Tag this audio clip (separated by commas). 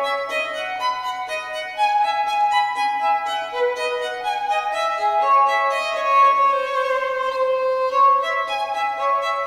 Musical instrument, Music, Violin